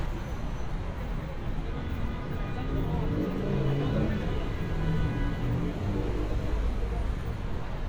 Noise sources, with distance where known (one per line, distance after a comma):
medium-sounding engine, near